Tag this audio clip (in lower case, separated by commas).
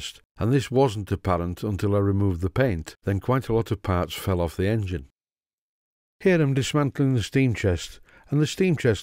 speech